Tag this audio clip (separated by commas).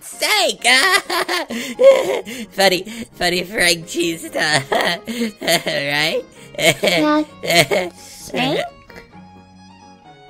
Speech, Music